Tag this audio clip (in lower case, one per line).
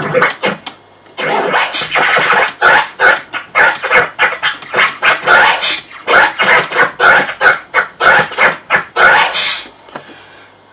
music
scratching (performance technique)